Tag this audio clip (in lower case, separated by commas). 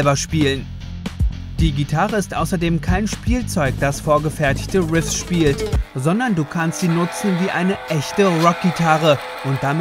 strum, speech, electric guitar, music, guitar